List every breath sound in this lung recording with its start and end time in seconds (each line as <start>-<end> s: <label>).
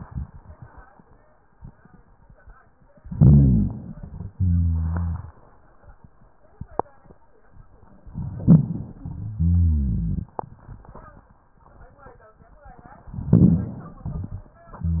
2.98-4.02 s: inhalation
2.98-4.02 s: rhonchi
4.31-5.35 s: exhalation
4.31-5.35 s: rhonchi
8.14-9.32 s: inhalation
8.14-9.32 s: rhonchi
9.43-10.32 s: exhalation
9.43-10.32 s: rhonchi
13.19-14.08 s: inhalation
13.26-13.90 s: rhonchi
14.15-14.53 s: exhalation
14.15-14.53 s: rhonchi